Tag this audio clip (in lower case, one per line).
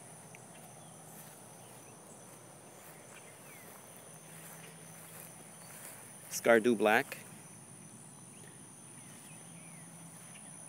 speech